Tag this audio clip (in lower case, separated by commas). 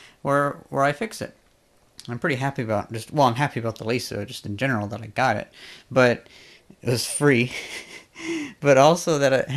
speech, inside a small room